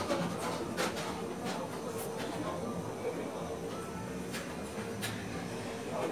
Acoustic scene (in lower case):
cafe